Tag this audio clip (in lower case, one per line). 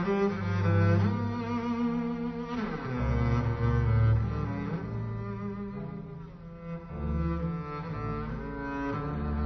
playing double bass